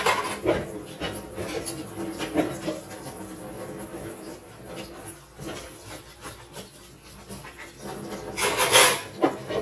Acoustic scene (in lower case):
kitchen